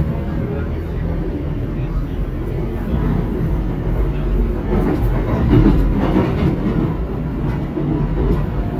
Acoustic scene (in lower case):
subway train